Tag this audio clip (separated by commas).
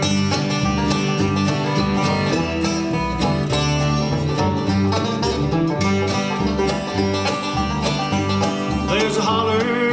Music, Bluegrass